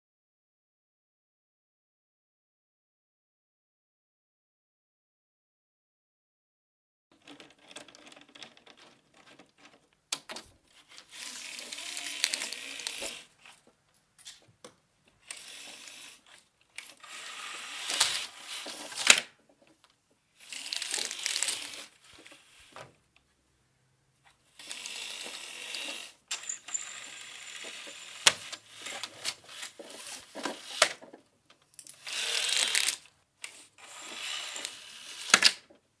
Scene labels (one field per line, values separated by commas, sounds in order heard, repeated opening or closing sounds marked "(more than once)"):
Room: living room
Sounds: window (more than once), footsteps